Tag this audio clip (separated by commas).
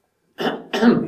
Respiratory sounds, Cough